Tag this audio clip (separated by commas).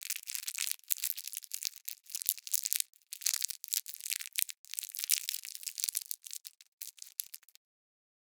crinkling